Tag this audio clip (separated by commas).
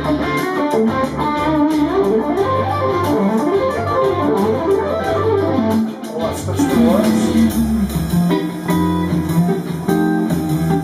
Musical instrument, Music, Speech, Guitar, Electric guitar